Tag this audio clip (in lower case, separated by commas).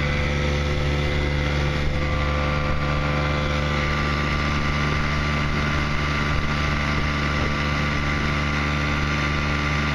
water vehicle, motorboat, vehicle